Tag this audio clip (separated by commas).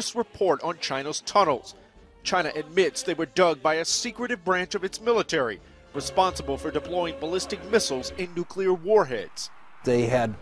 Speech